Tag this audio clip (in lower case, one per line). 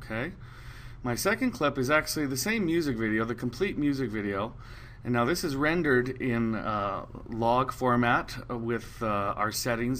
speech